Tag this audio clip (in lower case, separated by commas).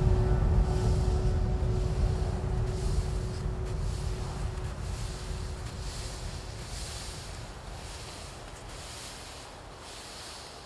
wind rustling leaves